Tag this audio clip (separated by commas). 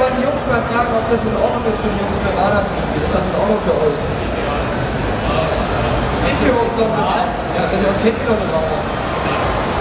Speech